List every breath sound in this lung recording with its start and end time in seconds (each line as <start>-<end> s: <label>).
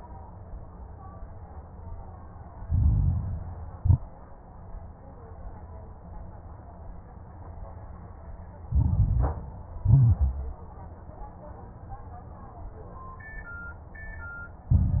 2.60-3.76 s: inhalation
2.60-3.76 s: crackles
3.76-4.03 s: exhalation
3.76-4.03 s: crackles
8.64-9.80 s: inhalation
8.64-9.80 s: crackles
9.80-10.57 s: exhalation
9.80-10.57 s: crackles
14.74-15.00 s: inhalation
14.74-15.00 s: crackles